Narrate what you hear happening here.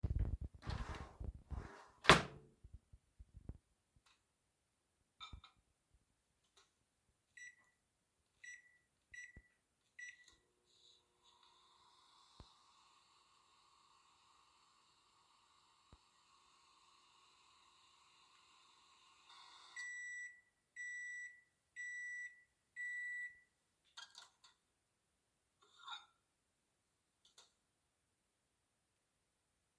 I opened a kichen drawer to get a fork for my food, I opened the closed microwave, put my plate in and then started the microwave. After a while, the process was done so I opened the microwave and took my plate out.